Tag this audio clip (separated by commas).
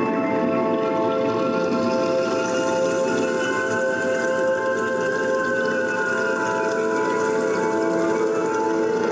Ambient music, Music, Musical instrument